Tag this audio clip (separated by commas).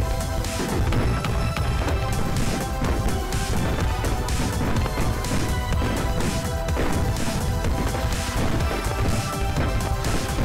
lighting firecrackers